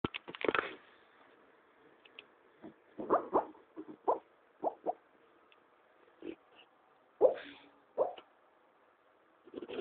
Muffled dog yipping